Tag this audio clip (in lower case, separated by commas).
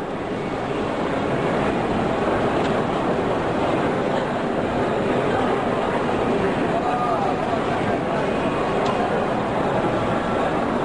speech